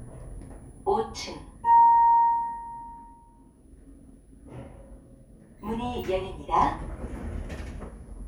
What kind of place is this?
elevator